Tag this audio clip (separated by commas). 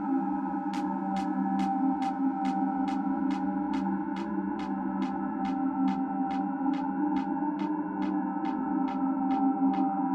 Music, Sound effect